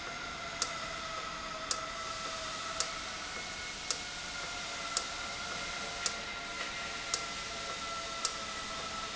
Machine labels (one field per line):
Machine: valve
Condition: normal